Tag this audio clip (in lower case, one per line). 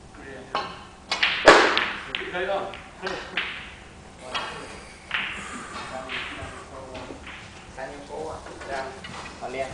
speech